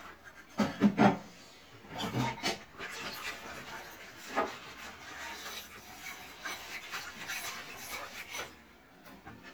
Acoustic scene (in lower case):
kitchen